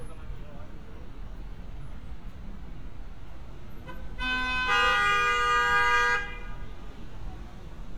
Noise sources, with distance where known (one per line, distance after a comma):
car horn, near